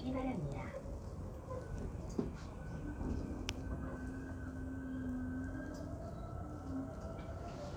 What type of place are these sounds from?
subway train